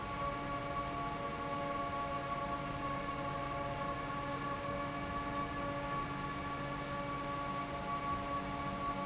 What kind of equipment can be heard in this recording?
fan